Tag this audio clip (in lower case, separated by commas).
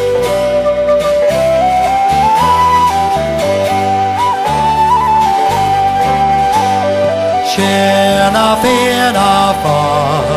music